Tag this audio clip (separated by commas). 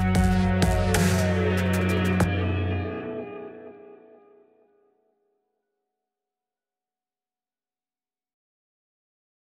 Rock music, Music